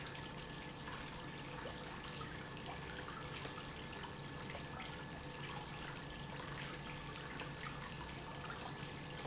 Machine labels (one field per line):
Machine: pump